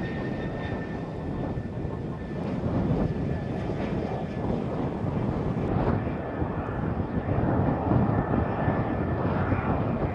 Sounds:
vehicle
fixed-wing aircraft

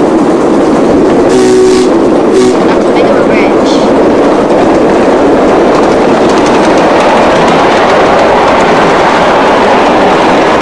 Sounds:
vehicle
medium engine (mid frequency)
speech
engine

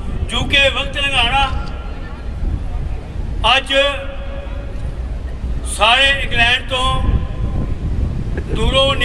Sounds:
speech
monologue
male speech

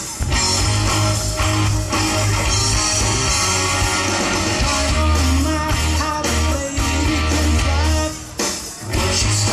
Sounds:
music

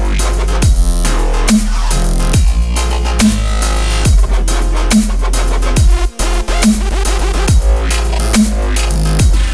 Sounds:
music

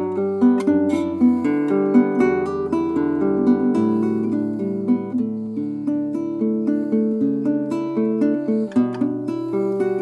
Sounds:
musical instrument
music
plucked string instrument
acoustic guitar

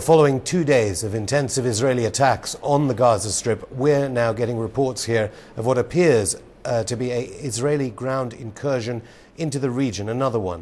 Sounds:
speech

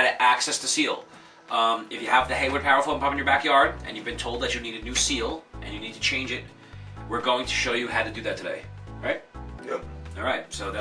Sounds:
music
speech

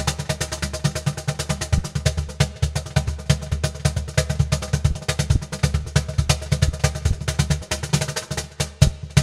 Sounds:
percussion
music
drum
musical instrument
snare drum

